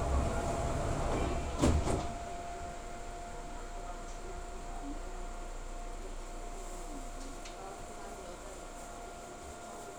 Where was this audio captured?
on a subway train